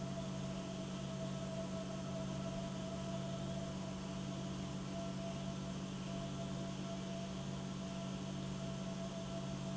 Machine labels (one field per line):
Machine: pump